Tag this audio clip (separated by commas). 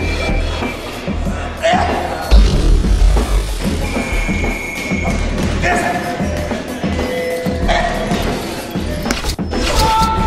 Music, Speech